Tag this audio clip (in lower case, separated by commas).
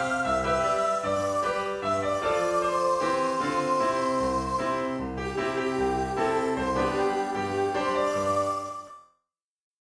music, theme music